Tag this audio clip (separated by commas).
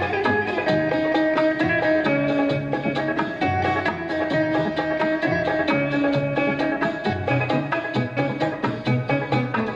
Middle Eastern music, Music